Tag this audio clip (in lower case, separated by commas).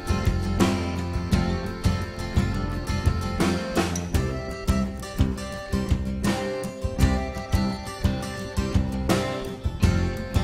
music